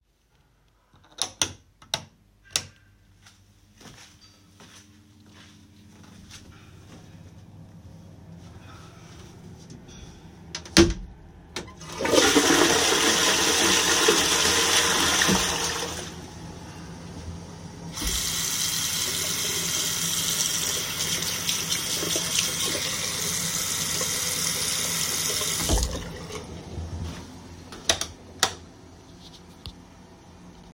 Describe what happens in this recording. I walked into the bathroom, turned the light switch on and off, ran the water, and flushed the toilet while holding the phone.